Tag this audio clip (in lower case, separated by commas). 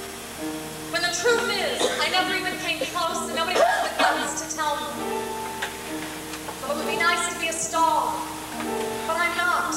speech, music